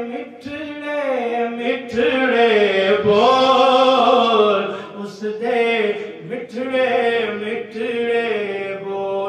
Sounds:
Chant

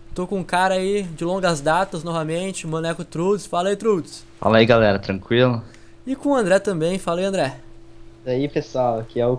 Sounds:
Speech

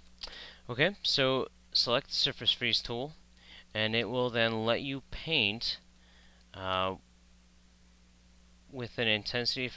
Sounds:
Speech

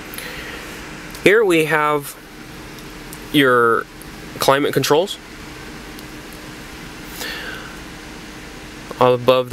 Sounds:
Speech, Car, Vehicle

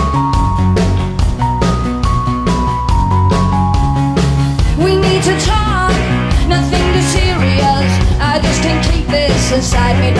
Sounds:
Music

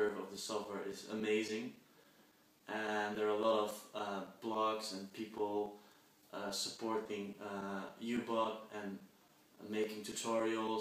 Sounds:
Speech

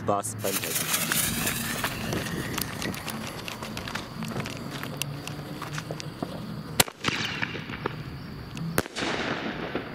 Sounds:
Fireworks, Speech

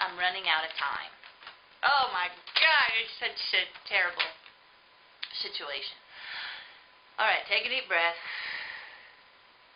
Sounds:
Speech

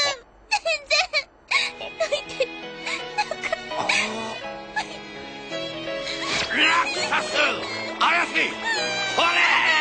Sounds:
Speech, Music

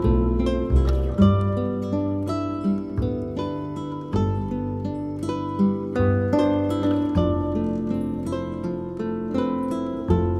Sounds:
Pizzicato

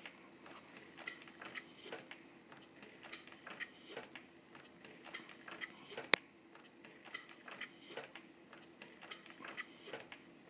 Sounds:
Engine

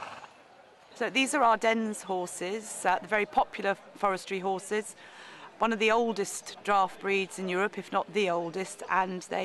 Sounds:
Speech

